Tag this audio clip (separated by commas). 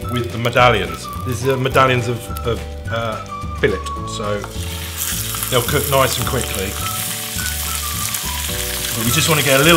Speech, Music, inside a small room